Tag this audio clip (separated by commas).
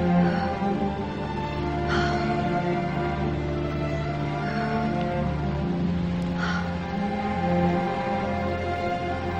Music